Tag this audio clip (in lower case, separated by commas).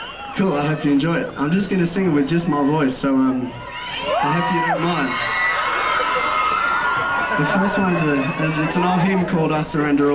speech